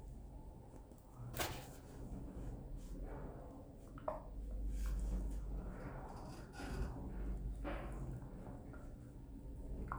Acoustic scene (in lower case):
elevator